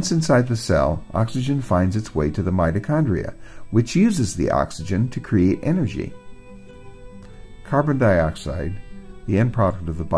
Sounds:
Speech, Music

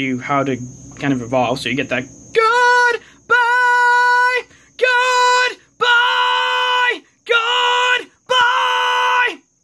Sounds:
Male speech, Speech

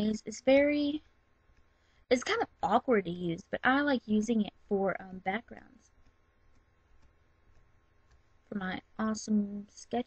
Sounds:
Speech

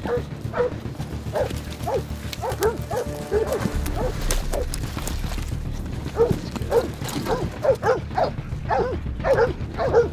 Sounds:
dog baying

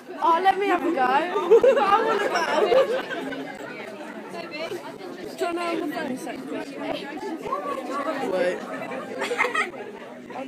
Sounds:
inside a public space, Speech

